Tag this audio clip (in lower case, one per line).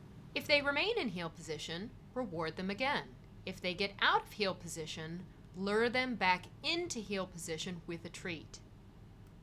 speech